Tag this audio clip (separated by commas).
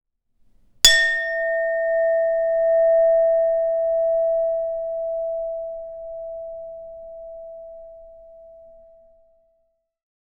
Chink, Glass